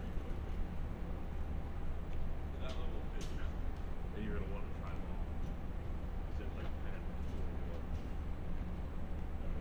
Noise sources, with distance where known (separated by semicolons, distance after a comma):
person or small group talking, near